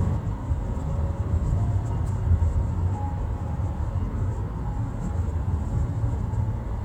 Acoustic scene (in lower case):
car